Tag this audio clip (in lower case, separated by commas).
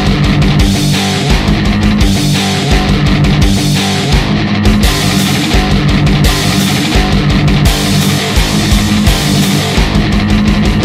heavy metal, music, rock music